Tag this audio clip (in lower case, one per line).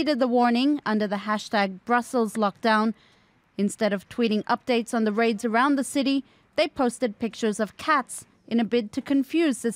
speech